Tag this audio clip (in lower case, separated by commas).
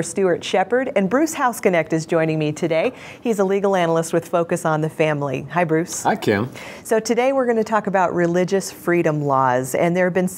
speech